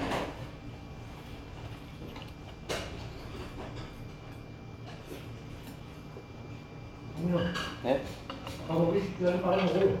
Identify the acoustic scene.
restaurant